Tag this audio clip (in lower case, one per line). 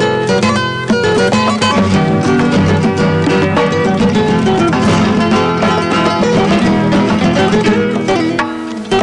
music of latin america
music